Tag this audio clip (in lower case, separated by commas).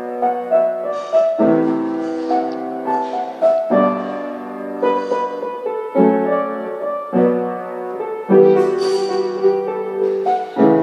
piano, playing piano, music, musical instrument, keyboard (musical)